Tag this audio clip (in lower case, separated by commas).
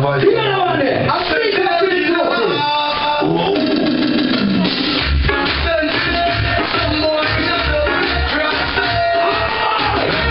speech, music